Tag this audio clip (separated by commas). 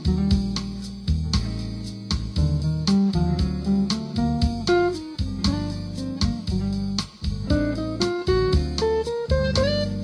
Musical instrument, Acoustic guitar, Music, Plucked string instrument, Guitar